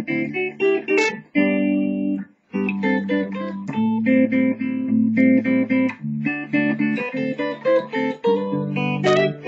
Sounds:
Guitar, Plucked string instrument, Strum, Musical instrument, Electric guitar, Music

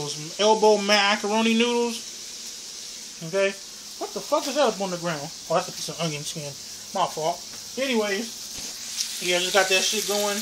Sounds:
Speech, inside a small room

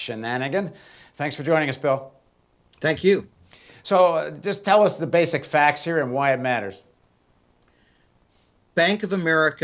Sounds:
Speech

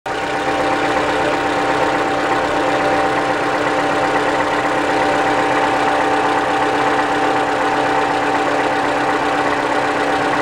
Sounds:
car engine knocking

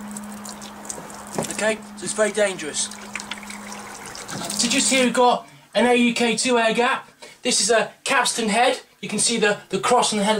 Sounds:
Speech, Liquid, dribble, Water

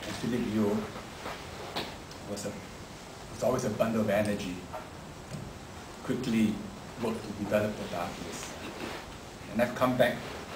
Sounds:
Speech, man speaking, monologue

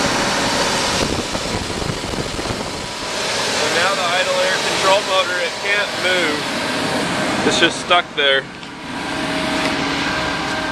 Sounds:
car engine idling

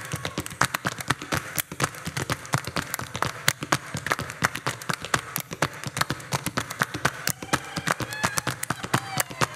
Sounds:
Percussion

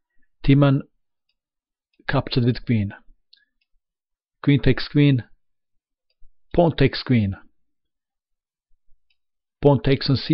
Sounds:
Speech

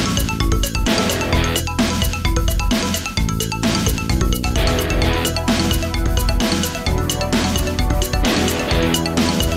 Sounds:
Music

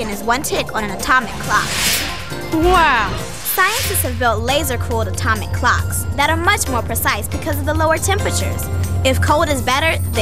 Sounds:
Music, Speech

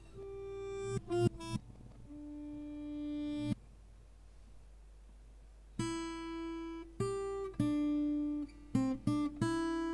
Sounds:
Music

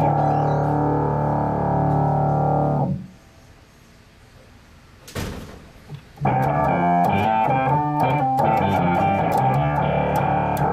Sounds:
Music, Rhythm and blues

